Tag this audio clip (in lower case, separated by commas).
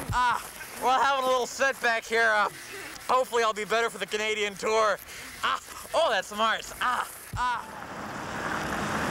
speech, outside, urban or man-made